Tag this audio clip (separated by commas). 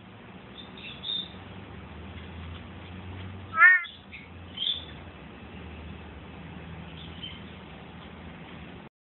Frog